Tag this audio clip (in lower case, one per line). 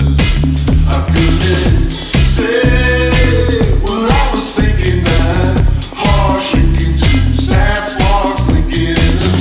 singing
music